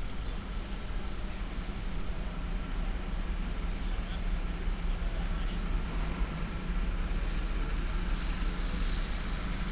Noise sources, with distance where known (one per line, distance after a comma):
person or small group talking, far